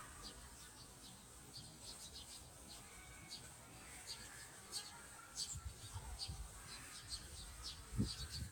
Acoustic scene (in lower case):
park